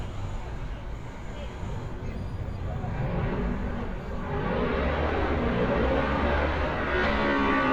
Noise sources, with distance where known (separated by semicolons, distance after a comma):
medium-sounding engine, near; unidentified human voice, far